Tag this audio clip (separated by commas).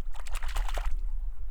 Liquid, Splash